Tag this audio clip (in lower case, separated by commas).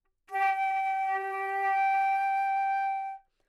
musical instrument, wind instrument, music